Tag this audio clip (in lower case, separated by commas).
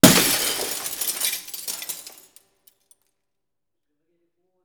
glass, shatter